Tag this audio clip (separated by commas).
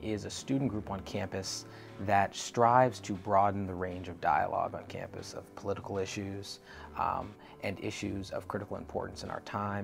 monologue, Speech, man speaking